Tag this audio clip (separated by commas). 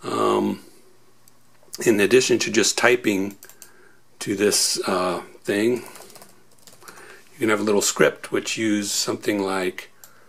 Speech, inside a small room